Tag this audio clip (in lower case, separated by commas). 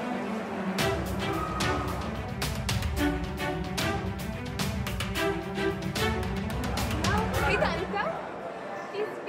speech, music